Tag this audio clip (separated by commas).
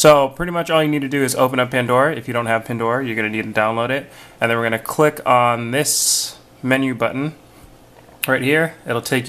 Speech